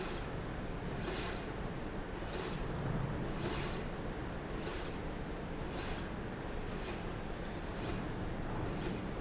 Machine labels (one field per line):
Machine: slide rail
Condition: normal